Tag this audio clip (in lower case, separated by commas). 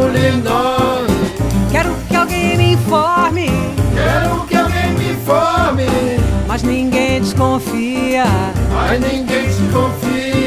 jazz, jingle (music), music